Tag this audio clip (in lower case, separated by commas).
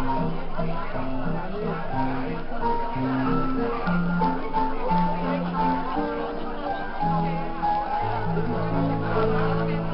music, speech